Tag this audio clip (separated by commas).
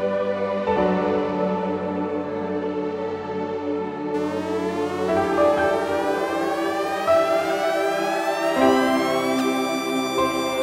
Music